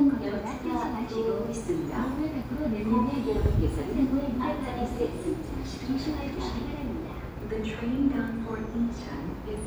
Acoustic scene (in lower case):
subway station